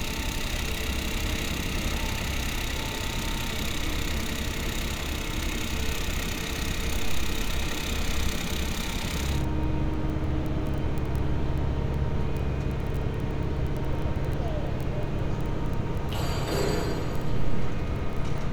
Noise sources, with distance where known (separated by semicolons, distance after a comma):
unidentified impact machinery